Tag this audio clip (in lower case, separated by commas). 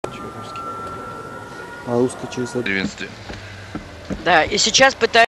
speech